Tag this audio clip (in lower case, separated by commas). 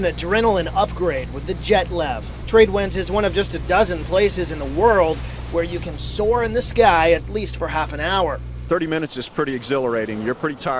speech